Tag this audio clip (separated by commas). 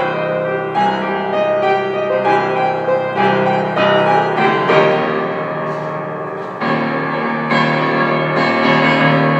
Music